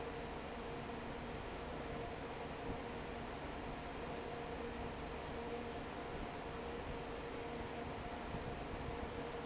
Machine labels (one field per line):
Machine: fan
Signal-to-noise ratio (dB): 6 dB